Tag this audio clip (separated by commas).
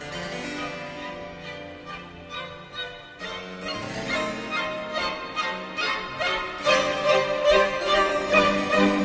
Music, Violin, Musical instrument